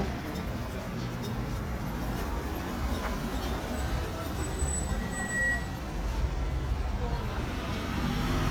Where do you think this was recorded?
in a residential area